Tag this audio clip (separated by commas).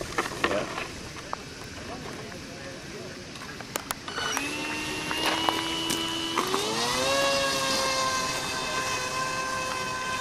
Speech